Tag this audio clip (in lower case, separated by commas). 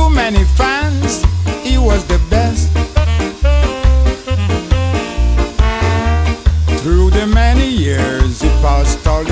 music